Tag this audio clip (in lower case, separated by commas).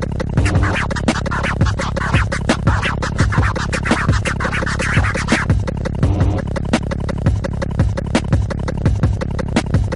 scratching (performance technique), hip hop music, music